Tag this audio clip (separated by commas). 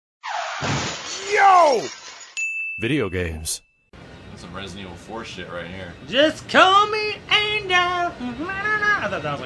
Speech